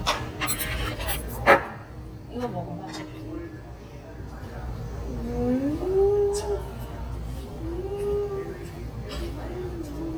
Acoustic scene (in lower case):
restaurant